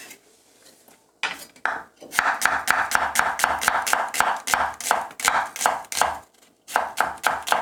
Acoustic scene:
kitchen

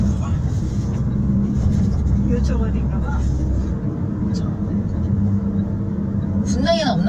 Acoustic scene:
car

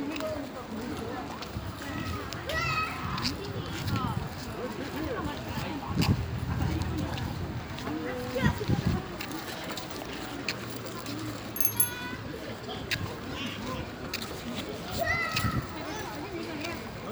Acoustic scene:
park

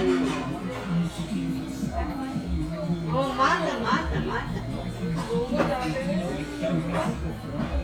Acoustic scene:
crowded indoor space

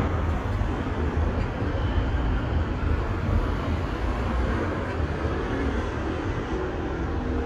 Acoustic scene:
street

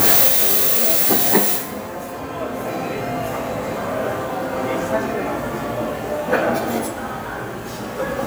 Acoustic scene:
cafe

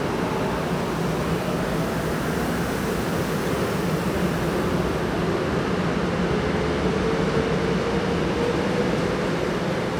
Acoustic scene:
subway station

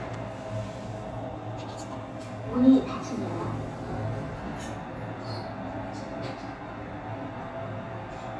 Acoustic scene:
elevator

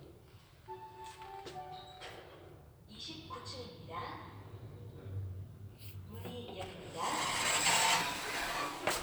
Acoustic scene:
elevator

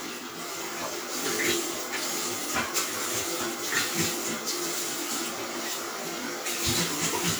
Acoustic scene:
restroom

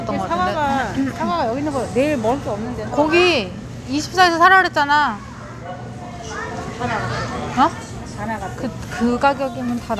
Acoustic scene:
crowded indoor space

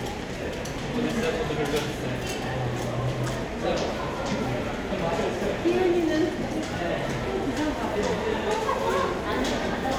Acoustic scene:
crowded indoor space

